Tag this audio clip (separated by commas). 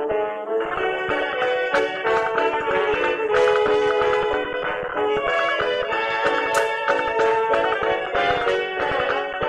Music